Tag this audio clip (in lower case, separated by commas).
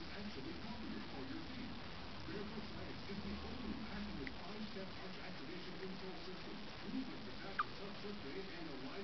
speech